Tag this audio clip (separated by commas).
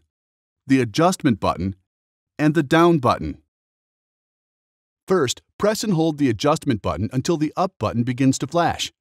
Speech